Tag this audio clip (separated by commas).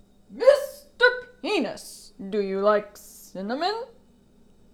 Shout, Speech, Human voice, Yell, Female speech